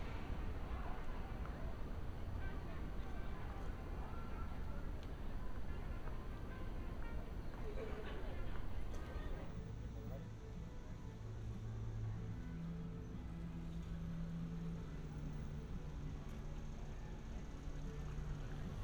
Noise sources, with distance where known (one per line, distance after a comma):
music from a fixed source
person or small group talking